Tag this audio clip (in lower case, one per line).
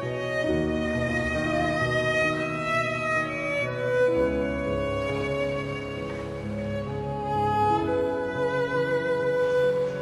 music